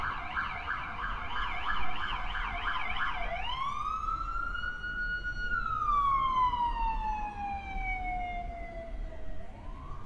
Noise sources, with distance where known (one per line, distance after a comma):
siren, near